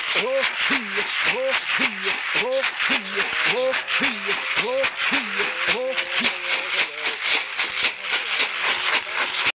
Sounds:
music

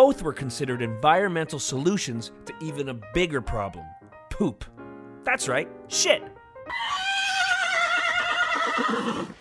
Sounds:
speech
whinny
music
horse neighing

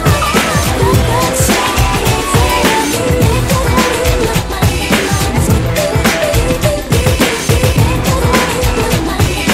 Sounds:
music
pop music

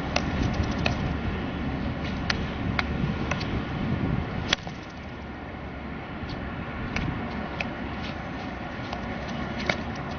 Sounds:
playing hockey

